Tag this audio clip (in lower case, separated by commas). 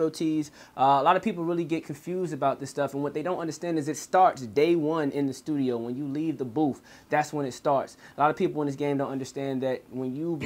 speech